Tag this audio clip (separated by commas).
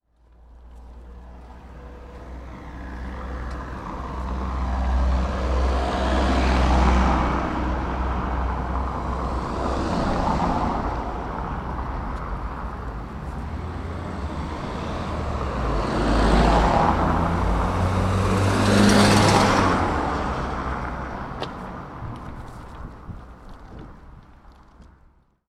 Car passing by, Motor vehicle (road), Vehicle, Traffic noise, Car